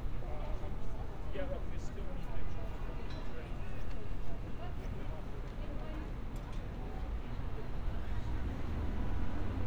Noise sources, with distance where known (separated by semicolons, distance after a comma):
person or small group talking, near